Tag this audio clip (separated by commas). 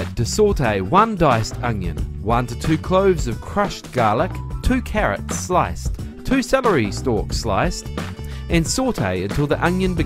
Speech, Music